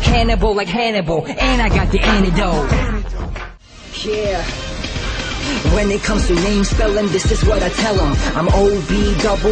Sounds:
Music, pop

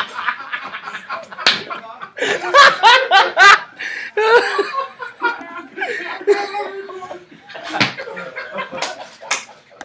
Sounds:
Speech, inside a small room

